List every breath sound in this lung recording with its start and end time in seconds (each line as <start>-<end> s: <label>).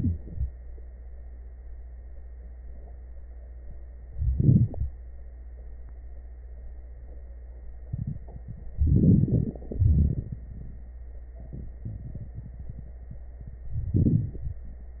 4.16-4.92 s: inhalation
8.82-9.59 s: inhalation
8.82-9.59 s: crackles
9.64-10.96 s: exhalation
9.64-10.96 s: crackles
13.72-14.61 s: inhalation
13.72-14.61 s: crackles